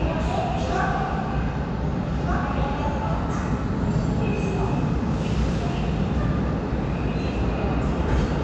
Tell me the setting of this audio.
subway station